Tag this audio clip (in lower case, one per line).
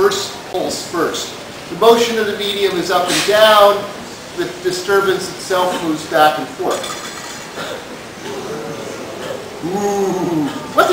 speech